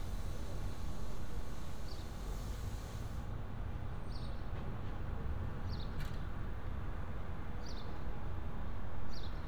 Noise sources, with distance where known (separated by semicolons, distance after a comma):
background noise